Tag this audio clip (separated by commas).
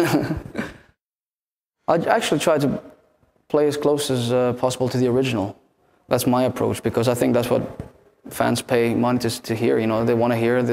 Speech